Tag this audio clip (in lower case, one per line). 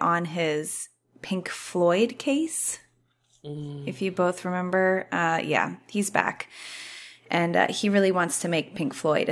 speech